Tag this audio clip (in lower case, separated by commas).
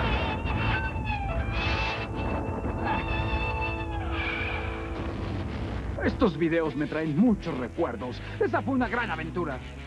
music, speech